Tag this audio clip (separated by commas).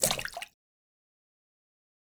splatter, Liquid